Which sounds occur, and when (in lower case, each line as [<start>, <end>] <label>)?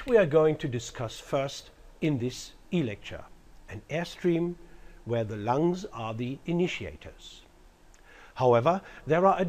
[0.01, 9.45] background noise
[0.03, 0.09] tick
[0.05, 1.65] man speaking
[1.95, 2.52] man speaking
[2.68, 3.40] man speaking
[3.59, 4.49] man speaking
[4.54, 5.04] breathing
[5.07, 7.41] man speaking
[7.87, 7.98] human sounds
[7.93, 8.37] breathing
[8.27, 8.73] man speaking